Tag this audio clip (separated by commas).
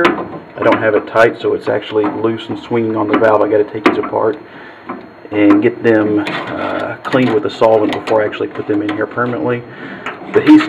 inside a small room, Speech